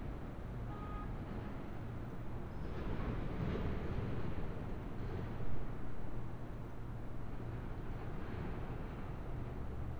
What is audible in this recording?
car horn